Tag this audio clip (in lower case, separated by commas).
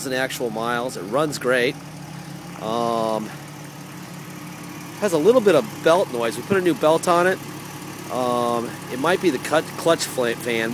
car, speech, vehicle